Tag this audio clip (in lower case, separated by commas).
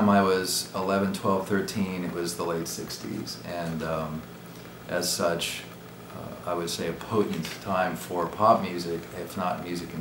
speech